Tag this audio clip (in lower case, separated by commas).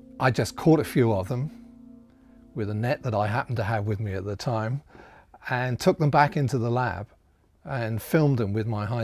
speech